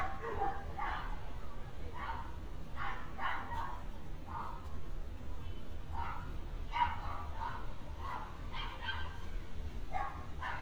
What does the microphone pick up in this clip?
dog barking or whining